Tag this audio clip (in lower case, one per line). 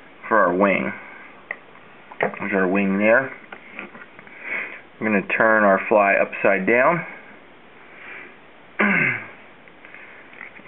speech